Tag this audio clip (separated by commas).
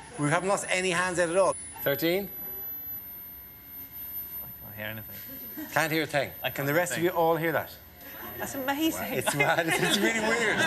Speech